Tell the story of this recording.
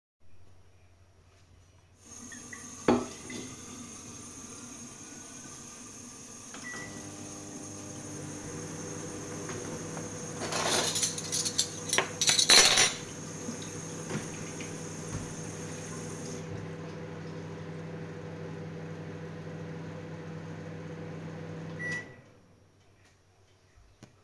I ran the water to fill up my water bottle and turned up the microwave to heat my food. I grabbed myself some cutlery, then turned the tap water off and deactivated the microwave.